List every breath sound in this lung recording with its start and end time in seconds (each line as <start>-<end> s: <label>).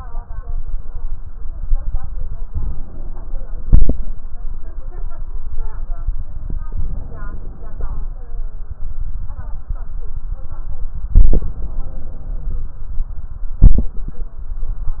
2.46-3.66 s: inhalation
3.67-4.16 s: exhalation
6.70-8.12 s: inhalation
11.11-12.71 s: inhalation